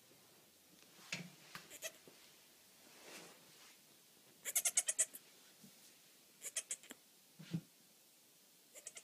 The goat is making a noise